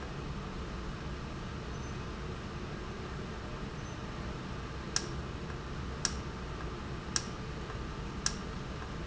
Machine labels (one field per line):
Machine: valve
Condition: normal